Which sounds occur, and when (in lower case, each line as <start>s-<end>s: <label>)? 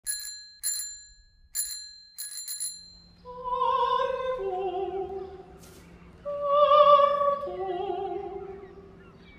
0.0s-3.3s: bicycle bell
3.1s-9.3s: mechanisms
3.3s-5.6s: female singing
3.3s-9.3s: wind
4.4s-5.4s: chirp
5.6s-5.8s: generic impact sounds
5.8s-6.2s: chirp
6.2s-9.0s: female singing
7.5s-9.3s: chirp